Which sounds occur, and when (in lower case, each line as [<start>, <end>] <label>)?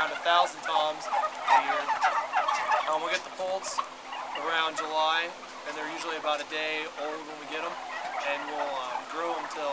[0.00, 9.72] gobble
[0.00, 9.72] mechanisms
[8.10, 9.72] man speaking